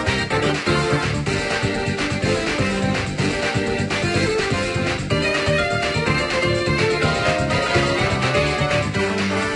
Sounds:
Music

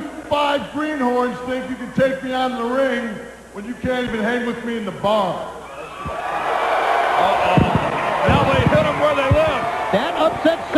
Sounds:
Speech

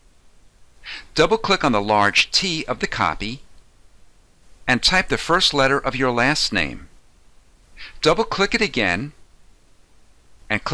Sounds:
Speech, monologue

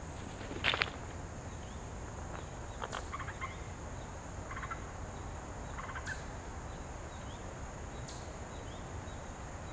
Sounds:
bird call, Bird

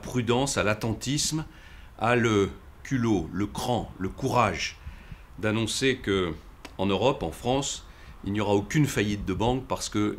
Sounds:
Speech

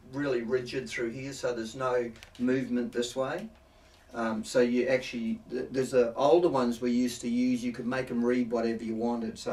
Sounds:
Speech

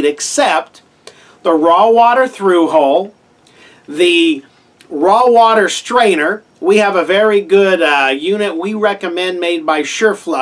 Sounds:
Speech

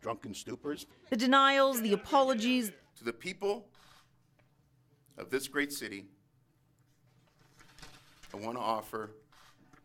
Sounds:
inside a large room or hall, Speech

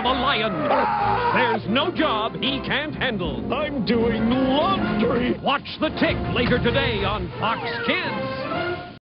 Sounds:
Music, Speech

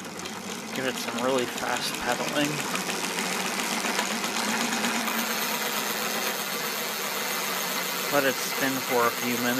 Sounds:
Bicycle, Speech

